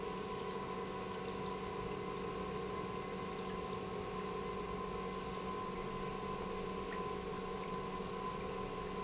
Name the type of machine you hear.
pump